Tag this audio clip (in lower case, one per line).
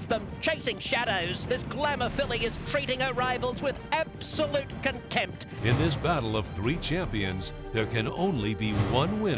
music
speech